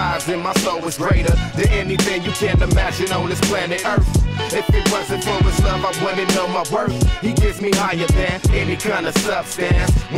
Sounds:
Music

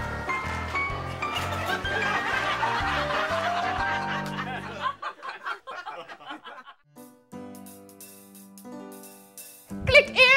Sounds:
Laughter

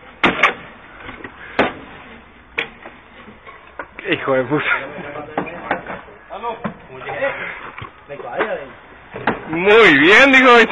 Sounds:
Speech

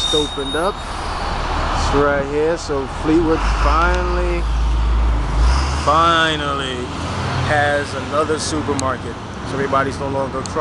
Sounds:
Speech

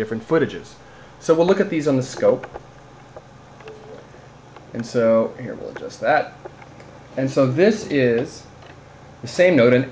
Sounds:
Speech

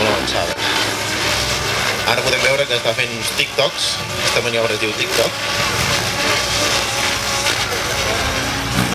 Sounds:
Vehicle, Speech

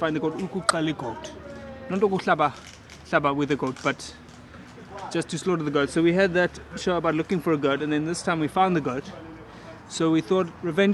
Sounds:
Speech

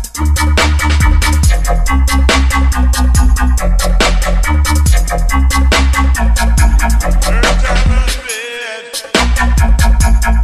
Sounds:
Music, Hip hop music

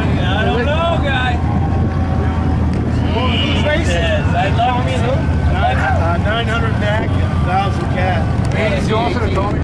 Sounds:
Vehicle, Motorboat, Speech

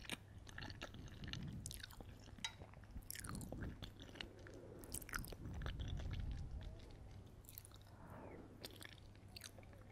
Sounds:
people slurping

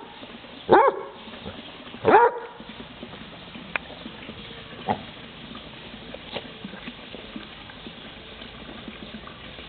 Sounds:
Animal

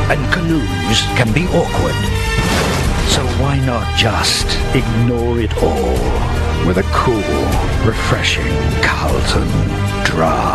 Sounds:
Music, Speech

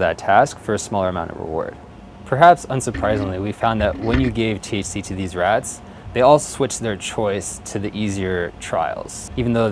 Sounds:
Speech

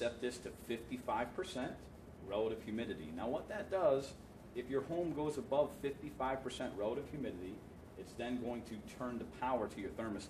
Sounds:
Speech

